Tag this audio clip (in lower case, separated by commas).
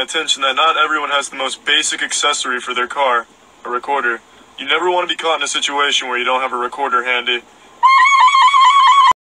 music, speech